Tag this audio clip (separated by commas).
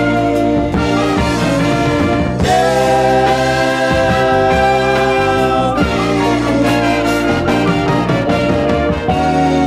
Gospel music, Music, Christian music